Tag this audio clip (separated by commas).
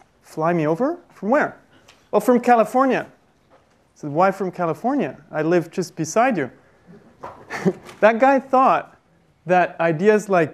Speech